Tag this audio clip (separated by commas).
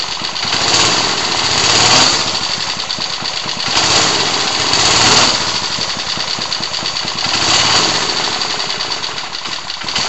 Accelerating